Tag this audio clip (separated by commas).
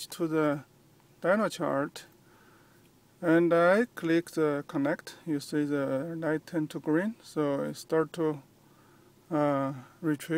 Speech